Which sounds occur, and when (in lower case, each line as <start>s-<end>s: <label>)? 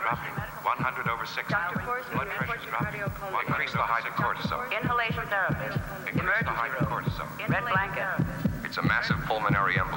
0.0s-0.3s: male speech
0.0s-9.9s: background noise
0.0s-9.9s: conversation
0.1s-0.4s: heartbeat
0.2s-0.6s: female speech
0.6s-1.5s: male speech
0.8s-1.1s: heartbeat
1.4s-3.3s: female speech
1.5s-1.8s: heartbeat
2.1s-3.1s: male speech
2.1s-2.5s: heartbeat
2.8s-3.1s: heartbeat
3.3s-4.5s: male speech
3.4s-3.8s: heartbeat
4.2s-4.5s: heartbeat
4.5s-5.8s: female speech
4.8s-5.2s: heartbeat
5.5s-5.8s: heartbeat
6.0s-7.2s: male speech
6.1s-6.5s: heartbeat
6.8s-7.1s: heartbeat
7.4s-8.2s: male speech
7.5s-7.8s: heartbeat
7.6s-8.2s: female speech
8.1s-8.5s: heartbeat
8.6s-9.9s: male speech
8.8s-9.2s: heartbeat
9.5s-9.8s: heartbeat